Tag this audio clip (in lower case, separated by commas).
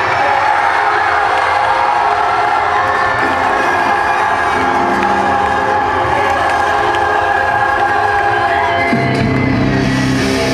music